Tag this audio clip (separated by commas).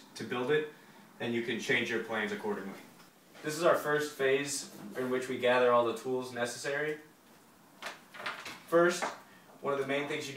Speech